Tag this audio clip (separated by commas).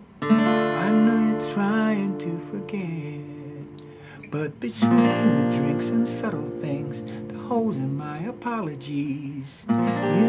Guitar, Plucked string instrument, Strum, Music, Acoustic guitar, Musical instrument